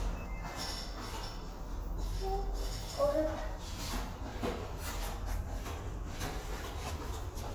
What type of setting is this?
elevator